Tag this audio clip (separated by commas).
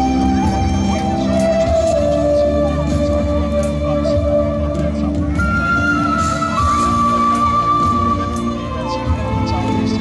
Flute, Music, Speech